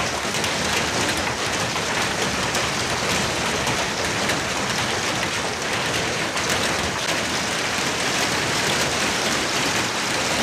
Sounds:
hail

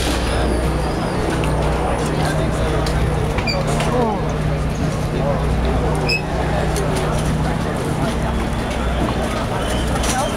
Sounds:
Vehicle, Speech

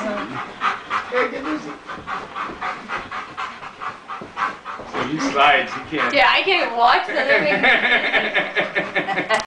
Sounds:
Domestic animals, Dog, Speech, Animal

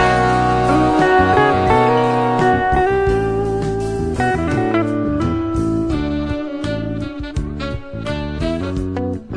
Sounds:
Trombone, Brass instrument

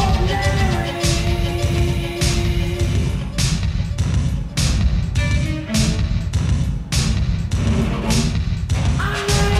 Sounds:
Music

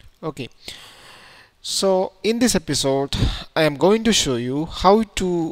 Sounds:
Speech

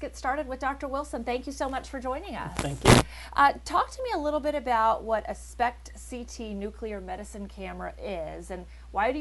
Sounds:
Speech

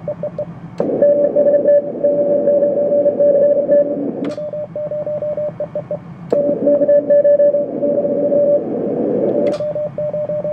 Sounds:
Radio

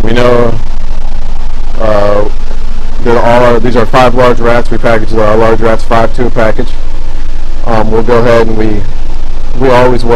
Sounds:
Speech

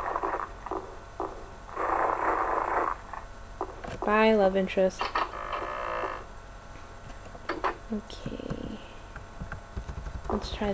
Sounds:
Speech

